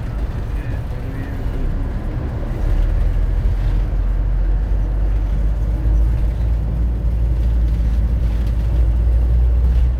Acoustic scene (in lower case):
bus